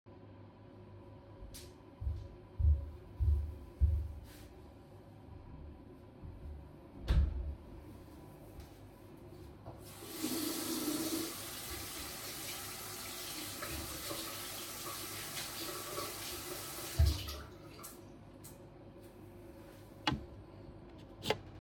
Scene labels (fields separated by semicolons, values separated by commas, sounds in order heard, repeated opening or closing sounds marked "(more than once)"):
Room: bathroom; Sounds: footsteps, door, running water